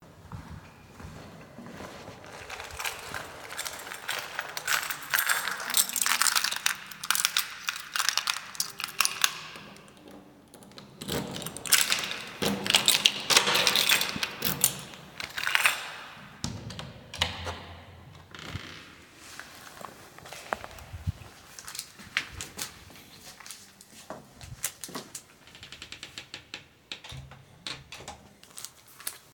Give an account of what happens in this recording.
I walk in the hallway. I get out my keys. I unlock the door. I open the door. I close the door.